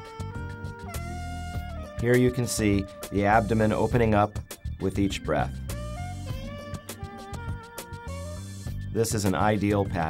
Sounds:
music, speech

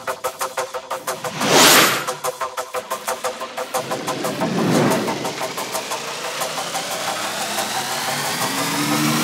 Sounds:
music

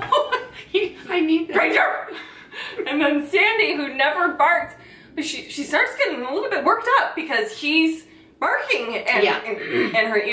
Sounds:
laughter, speech

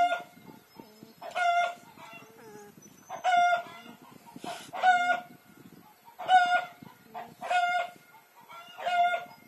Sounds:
livestock, animal

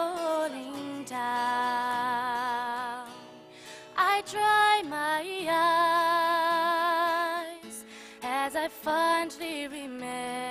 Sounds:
music, female singing

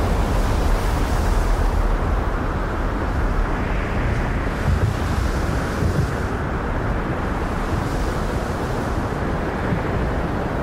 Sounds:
outside, rural or natural

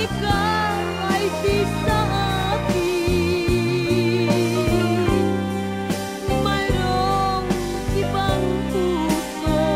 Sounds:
music

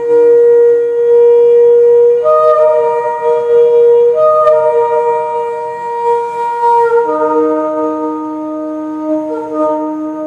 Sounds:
wind instrument, music

